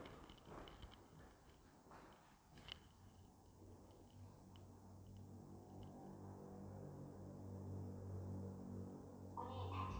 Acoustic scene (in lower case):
elevator